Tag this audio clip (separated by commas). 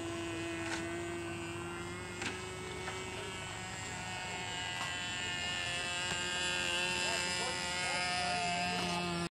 Speech